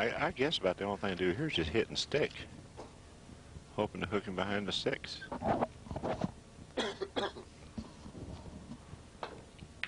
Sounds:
Speech

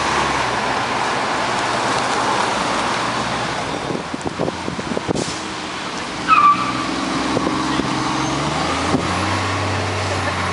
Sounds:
roadway noise, Vehicle, Bus, driving buses, Car

